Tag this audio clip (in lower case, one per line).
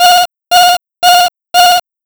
alarm